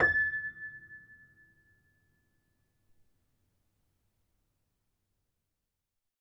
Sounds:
Keyboard (musical), Music, Musical instrument, Piano

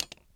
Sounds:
Tick, Tap

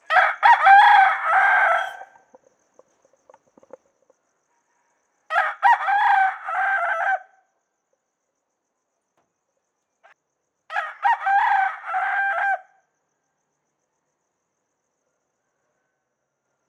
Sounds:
Animal, rooster, livestock, Fowl

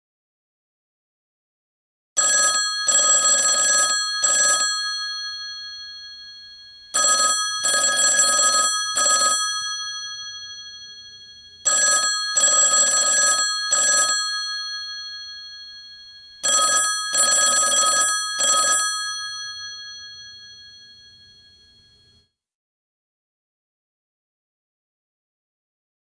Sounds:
Telephone, Alarm

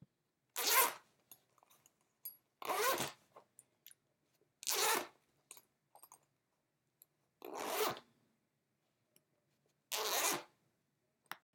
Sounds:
Zipper (clothing), home sounds

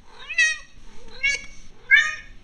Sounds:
Animal, pets, Cat

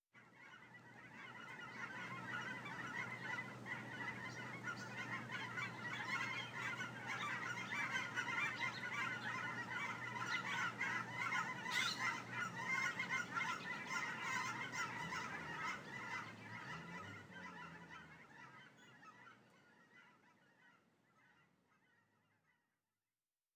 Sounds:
Bird, tweet, Fowl, bird song, Wild animals, Animal, livestock

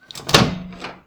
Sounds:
Microwave oven, Domestic sounds

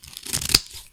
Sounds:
home sounds, Scissors

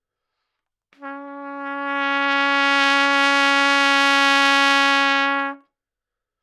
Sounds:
Musical instrument, Brass instrument, Trumpet, Music

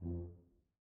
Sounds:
Musical instrument, Music, Brass instrument

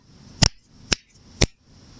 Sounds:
Hands

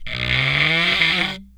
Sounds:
Wood

